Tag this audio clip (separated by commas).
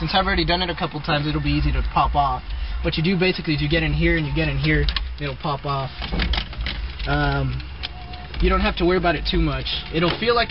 Speech, Music